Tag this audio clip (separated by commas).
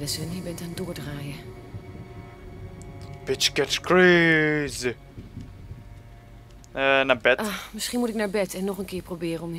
Speech, Music